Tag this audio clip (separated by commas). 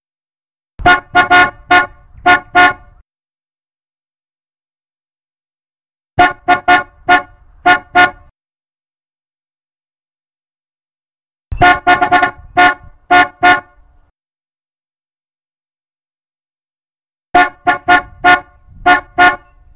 Vehicle, Motor vehicle (road), Car, Alarm, Vehicle horn